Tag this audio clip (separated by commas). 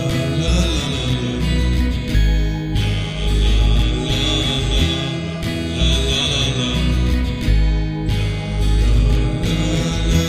Radio, Music